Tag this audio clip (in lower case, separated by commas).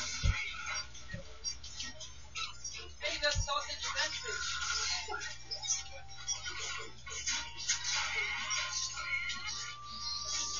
smash, speech